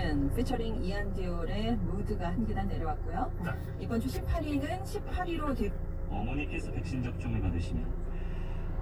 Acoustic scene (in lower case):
car